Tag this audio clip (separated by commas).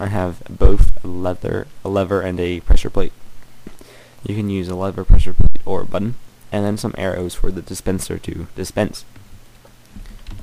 Speech